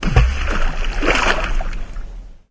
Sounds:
Splash, Liquid

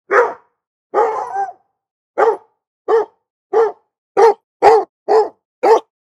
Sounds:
Dog, Domestic animals, Bark, Animal

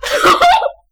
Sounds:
Laughter, Human voice

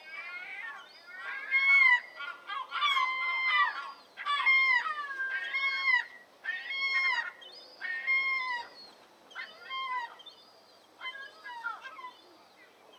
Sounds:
Wild animals, Bird, Animal, bird song

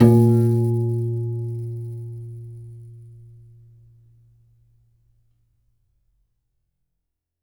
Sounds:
Musical instrument, Music, Piano, Keyboard (musical)

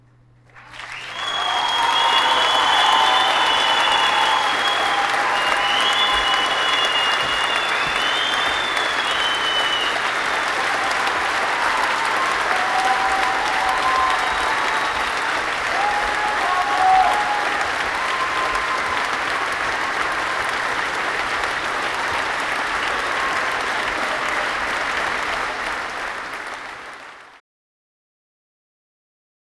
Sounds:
Cheering, Human group actions, Applause

